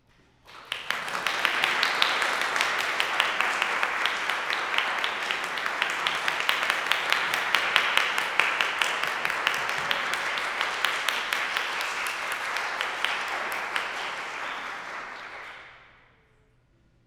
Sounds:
hands, human group actions, applause, clapping

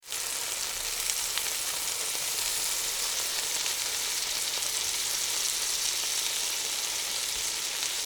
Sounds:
frying (food), domestic sounds

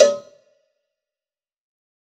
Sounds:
bell, cowbell

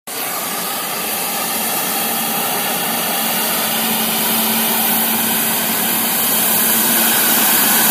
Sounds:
hiss

